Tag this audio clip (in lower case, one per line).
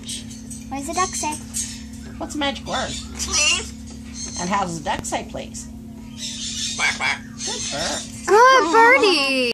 speech
quack